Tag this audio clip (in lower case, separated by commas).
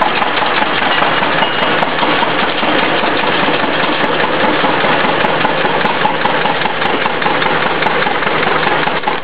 engine